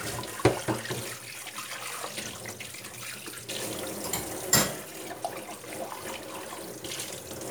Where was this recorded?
in a kitchen